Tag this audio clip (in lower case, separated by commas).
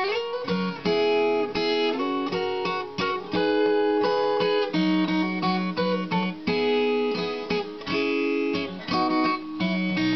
guitar, plucked string instrument, music, musical instrument, acoustic guitar